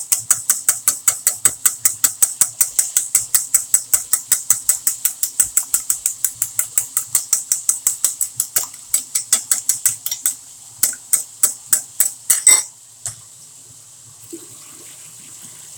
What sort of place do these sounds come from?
kitchen